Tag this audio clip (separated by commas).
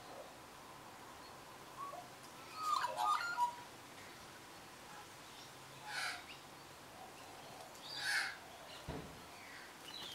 magpie calling